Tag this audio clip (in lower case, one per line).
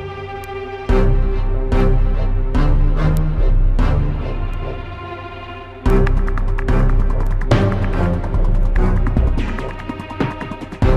music